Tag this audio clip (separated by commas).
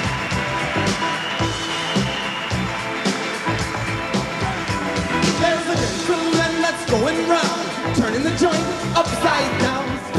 Music